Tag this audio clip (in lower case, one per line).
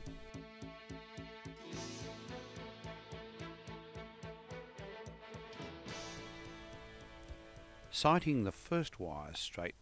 music
speech